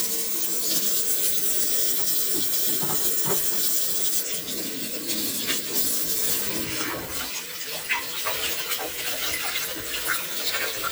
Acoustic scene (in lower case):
kitchen